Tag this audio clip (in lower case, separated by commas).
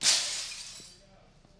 shatter, glass